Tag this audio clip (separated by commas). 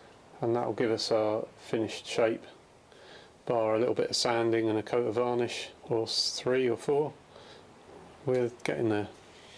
Speech